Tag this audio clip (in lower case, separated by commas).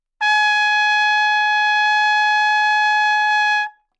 trumpet, brass instrument, music, musical instrument